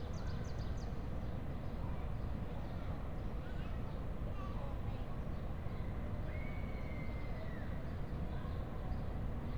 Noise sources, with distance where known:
person or small group talking, far
person or small group shouting, far

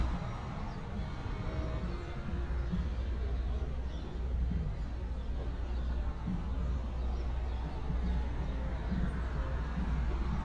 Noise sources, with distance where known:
music from an unclear source, far

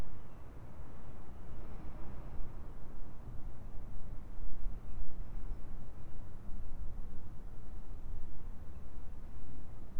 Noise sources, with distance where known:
background noise

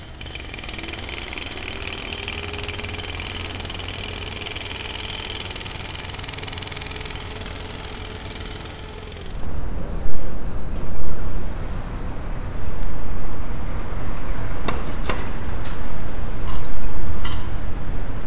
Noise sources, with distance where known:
unidentified impact machinery, near

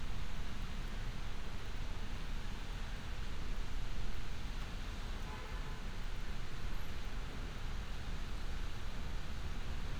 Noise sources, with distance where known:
car horn, far

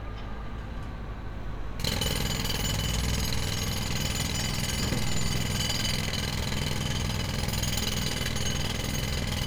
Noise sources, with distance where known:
unidentified impact machinery, near

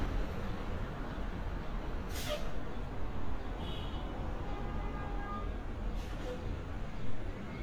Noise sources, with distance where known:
car horn, far

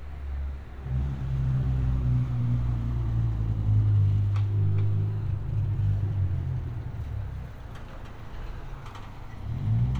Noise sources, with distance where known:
engine of unclear size, near

